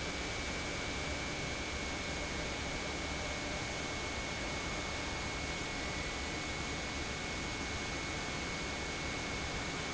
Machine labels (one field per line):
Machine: pump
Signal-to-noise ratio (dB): -6 dB